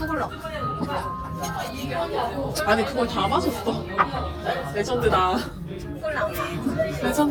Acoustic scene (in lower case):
crowded indoor space